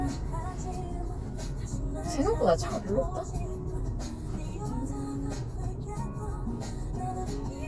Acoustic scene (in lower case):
car